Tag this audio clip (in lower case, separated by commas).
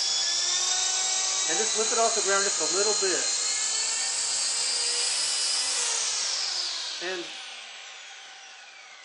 speech, helicopter